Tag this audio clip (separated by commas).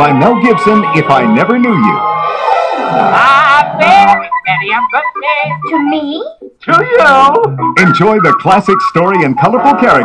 Speech, Music